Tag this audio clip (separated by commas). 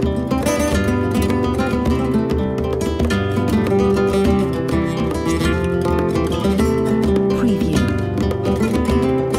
Speech, Music, Plucked string instrument